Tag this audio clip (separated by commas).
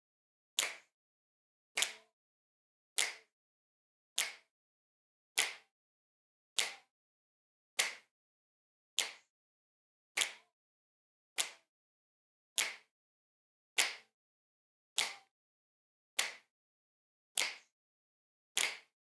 Finger snapping, Hands